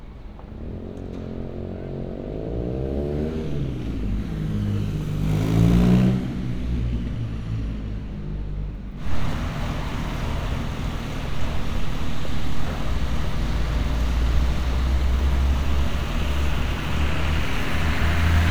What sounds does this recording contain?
medium-sounding engine